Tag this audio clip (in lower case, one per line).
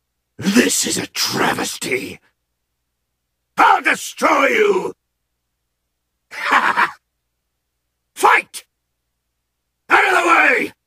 speech